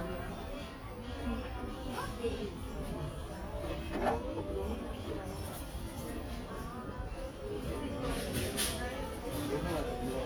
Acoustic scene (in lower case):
crowded indoor space